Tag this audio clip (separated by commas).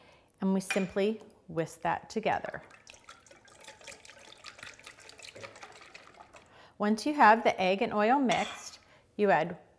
Stir